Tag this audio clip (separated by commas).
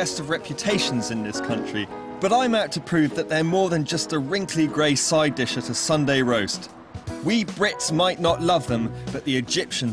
Speech, Music